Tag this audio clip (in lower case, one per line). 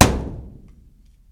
thump